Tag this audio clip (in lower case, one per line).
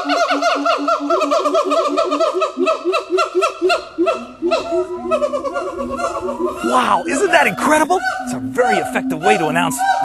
gibbon howling